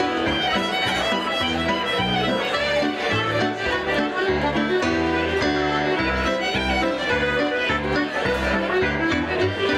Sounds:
wedding music, music, traditional music

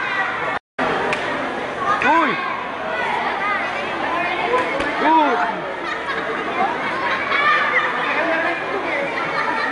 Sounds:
speech

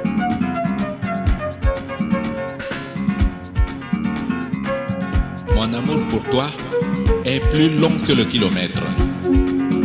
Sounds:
music, speech

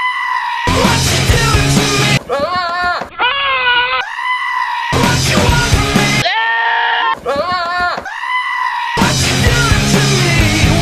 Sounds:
music, goat

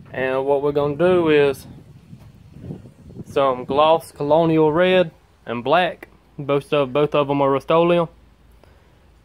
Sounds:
speech

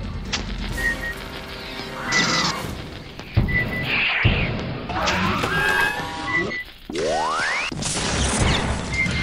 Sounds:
music, inside a large room or hall

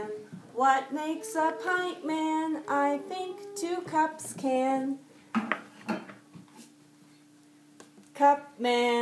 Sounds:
speech

